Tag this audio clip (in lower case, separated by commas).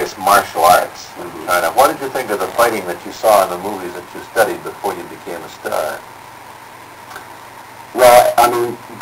speech